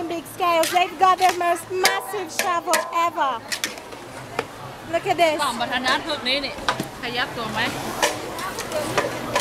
Women talking over banging sounds